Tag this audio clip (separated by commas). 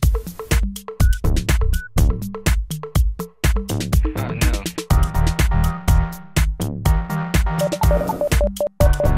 Music, Jingle (music)